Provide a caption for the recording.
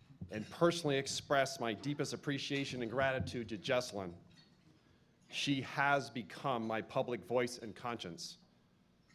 Young male public ally talking